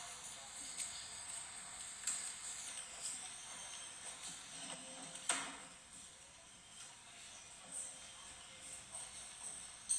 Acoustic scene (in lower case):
cafe